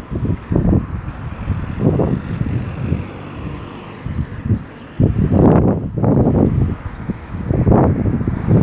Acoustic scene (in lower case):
residential area